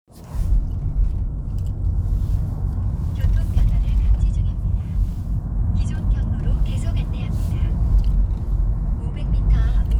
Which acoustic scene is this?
car